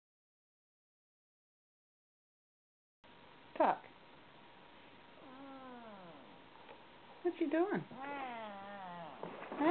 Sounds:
Animal, Cat, Domestic animals, Speech

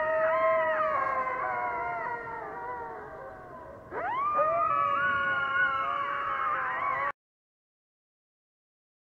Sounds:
coyote howling

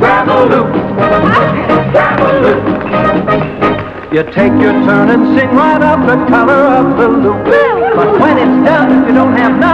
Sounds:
Music, Speech

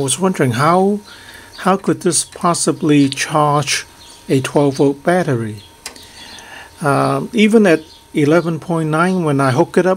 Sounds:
outside, rural or natural, Speech

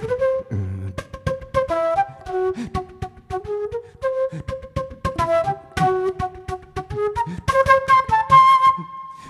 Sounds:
Flute, Musical instrument, playing flute, Music

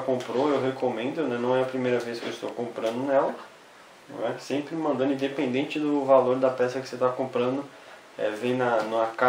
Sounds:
Speech

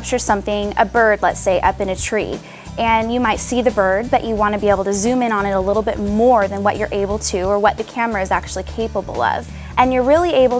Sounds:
Music, Speech

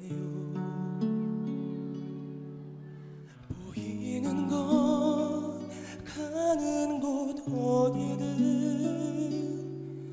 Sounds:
Music

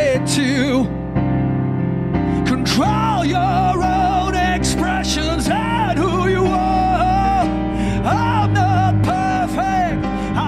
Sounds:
Music

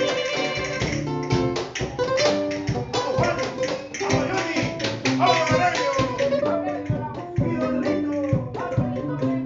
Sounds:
Saxophone, Brass instrument

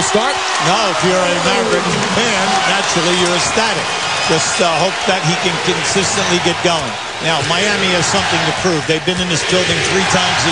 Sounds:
Basketball bounce, Speech

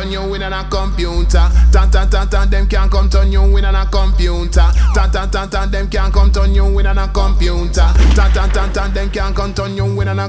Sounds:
Reggae, Music

